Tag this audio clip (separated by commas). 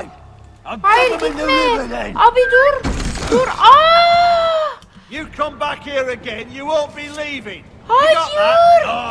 Music, Speech